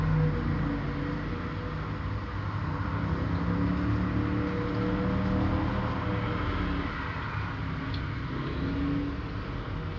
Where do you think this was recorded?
on a street